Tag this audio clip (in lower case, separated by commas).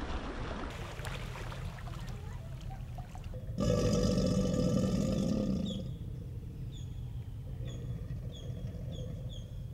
crocodiles hissing